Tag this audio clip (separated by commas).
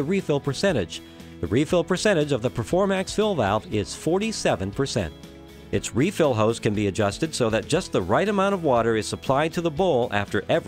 Speech, Music